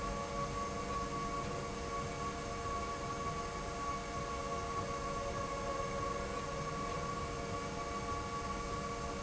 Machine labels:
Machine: slide rail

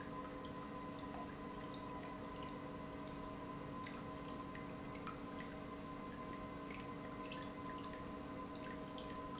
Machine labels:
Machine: pump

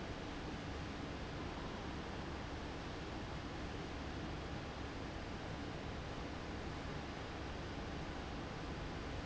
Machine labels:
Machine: fan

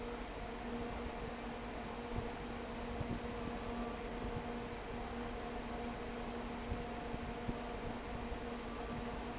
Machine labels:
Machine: fan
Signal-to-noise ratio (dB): 6 dB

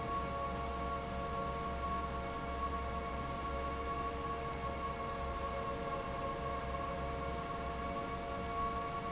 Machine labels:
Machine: fan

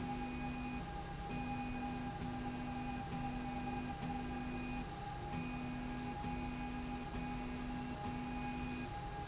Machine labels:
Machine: slide rail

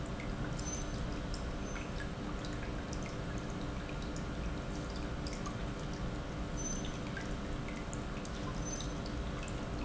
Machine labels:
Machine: pump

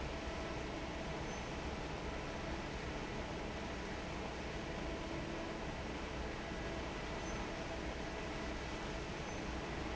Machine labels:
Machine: fan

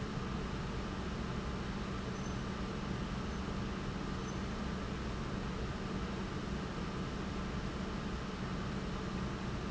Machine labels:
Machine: pump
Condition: normal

